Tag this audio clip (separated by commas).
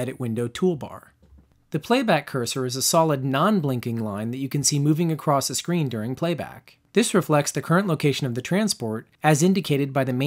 Speech